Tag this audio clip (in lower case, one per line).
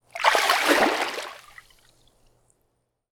splash
liquid